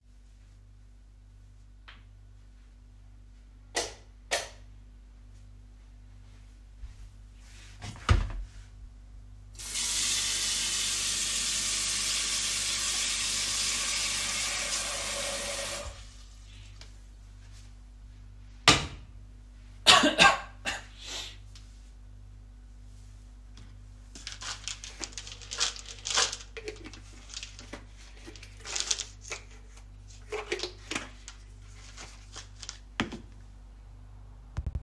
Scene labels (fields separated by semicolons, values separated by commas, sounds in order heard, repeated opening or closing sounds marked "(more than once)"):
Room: kitchen; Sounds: light switch, footsteps, running water